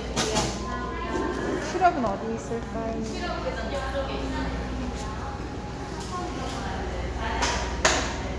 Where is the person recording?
in a cafe